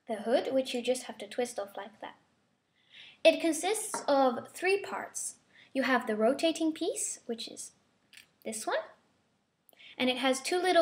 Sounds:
speech

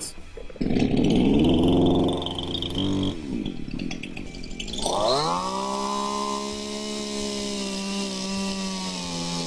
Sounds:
wood
sawing
rub

